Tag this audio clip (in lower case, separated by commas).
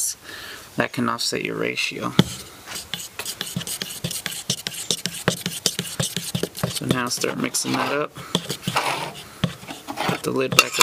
speech